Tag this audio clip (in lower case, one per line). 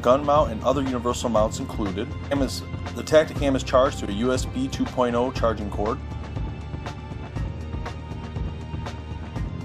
speech
music